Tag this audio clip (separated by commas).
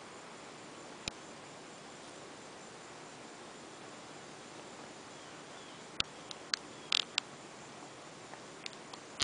Animal